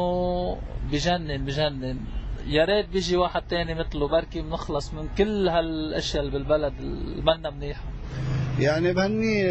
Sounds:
speech
male speech

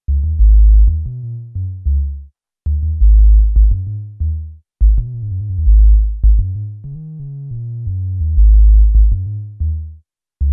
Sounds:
keyboard (musical)
electric piano
musical instrument
music

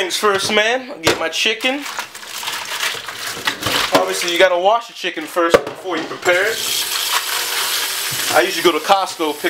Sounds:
speech

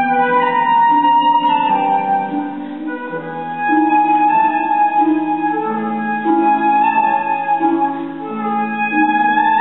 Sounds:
flute
playing flute
music

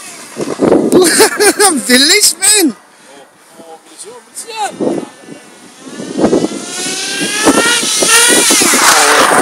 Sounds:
vehicle
speech

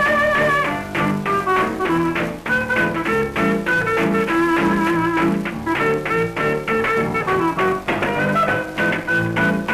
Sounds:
music

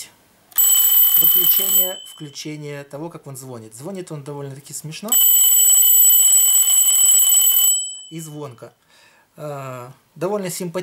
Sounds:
alarm clock ringing

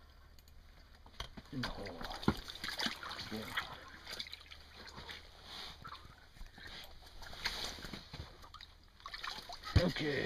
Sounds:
speech
inside a small room

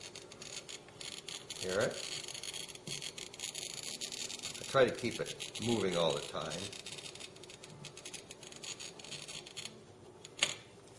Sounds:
speech

